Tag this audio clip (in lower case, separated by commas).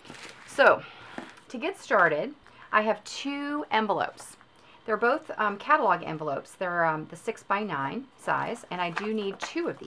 speech, flap